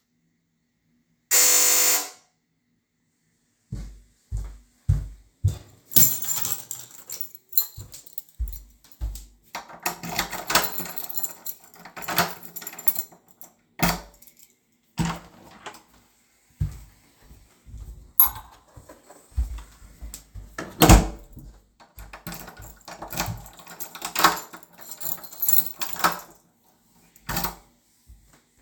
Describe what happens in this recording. The door bell rang, I walked to get the keys, unlocked and opened the door. A person entered the room, I closed the door and locked it again.